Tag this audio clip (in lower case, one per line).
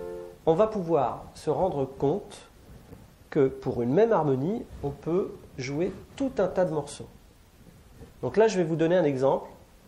speech